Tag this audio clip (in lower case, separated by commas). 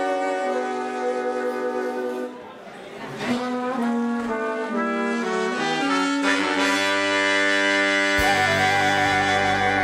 trumpet, brass instrument